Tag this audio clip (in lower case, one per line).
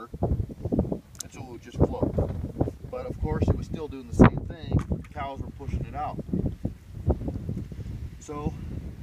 speech